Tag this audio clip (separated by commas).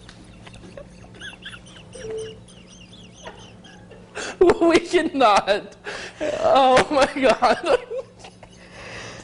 Speech, Oink